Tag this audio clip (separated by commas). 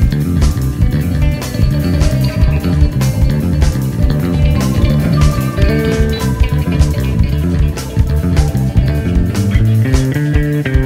Music